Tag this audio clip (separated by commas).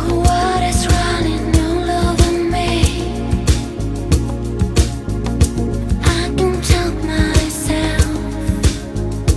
Soul music, Music